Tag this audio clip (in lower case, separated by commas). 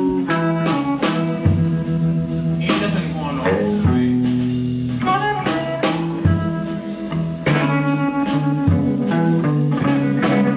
music